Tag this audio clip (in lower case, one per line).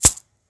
rattle (instrument)
musical instrument
percussion
music